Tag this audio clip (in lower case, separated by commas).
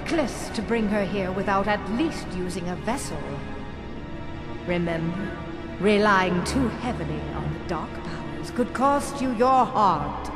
speech, music